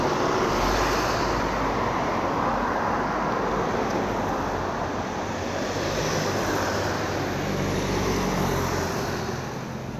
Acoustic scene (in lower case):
street